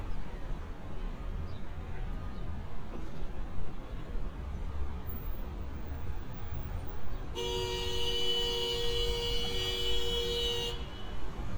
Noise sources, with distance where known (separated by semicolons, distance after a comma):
car horn, near